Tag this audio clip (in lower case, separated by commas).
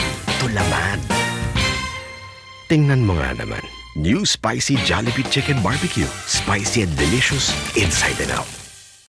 music, speech